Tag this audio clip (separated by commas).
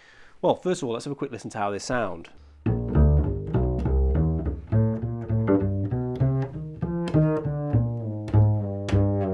Bowed string instrument, Double bass, Speech, Classical music, Music, playing double bass, Musical instrument